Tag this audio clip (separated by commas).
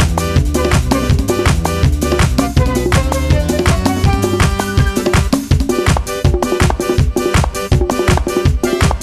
Music